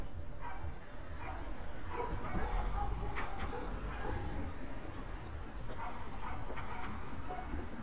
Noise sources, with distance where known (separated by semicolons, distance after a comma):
dog barking or whining